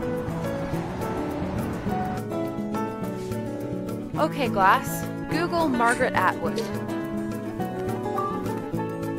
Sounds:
speech
music

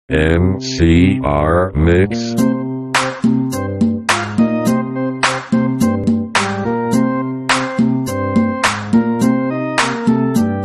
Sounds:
music
speech
rhythm and blues

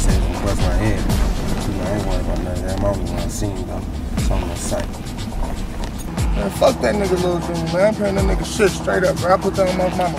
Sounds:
music
speech

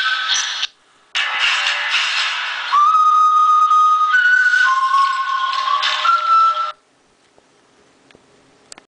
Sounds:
ringtone
music

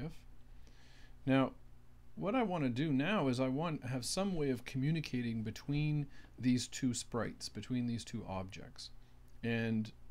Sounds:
speech

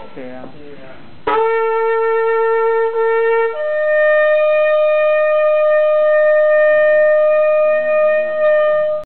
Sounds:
music

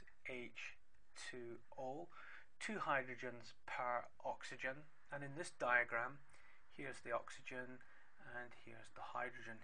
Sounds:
speech

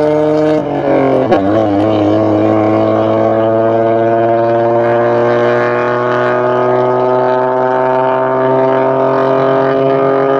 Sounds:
car
race car
vehicle
outside, urban or man-made

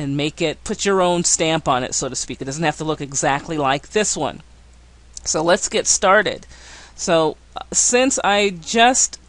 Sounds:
speech

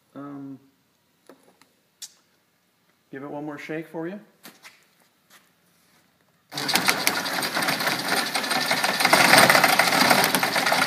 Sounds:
tools
speech
inside a small room

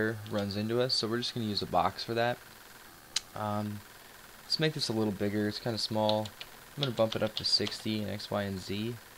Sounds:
speech

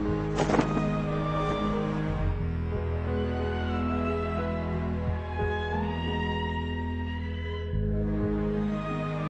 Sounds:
music

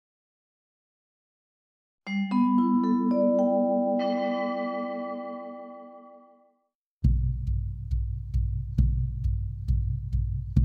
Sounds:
vibraphone
music

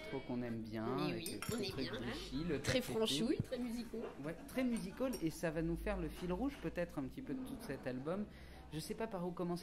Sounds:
speech

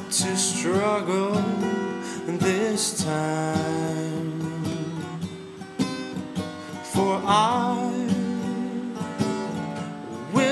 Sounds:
music

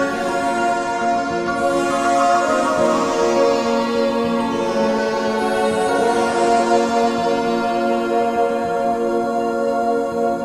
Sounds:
ambient music
music

